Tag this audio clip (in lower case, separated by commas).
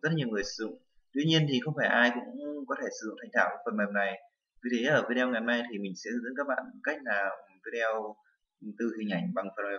speech